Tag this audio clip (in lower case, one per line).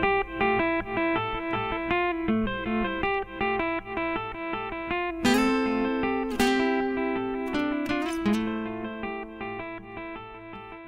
acoustic guitar
inside a small room
musical instrument
plucked string instrument
guitar
music